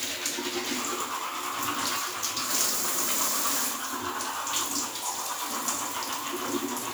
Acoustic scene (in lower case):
restroom